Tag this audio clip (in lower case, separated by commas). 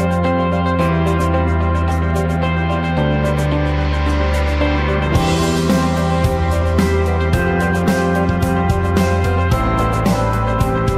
music